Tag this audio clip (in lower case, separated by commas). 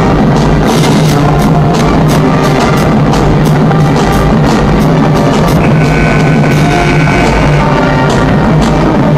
music